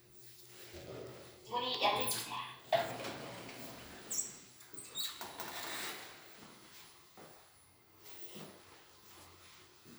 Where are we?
in an elevator